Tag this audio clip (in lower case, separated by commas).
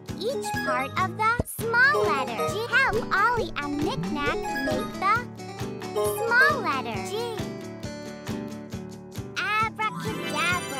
speech, music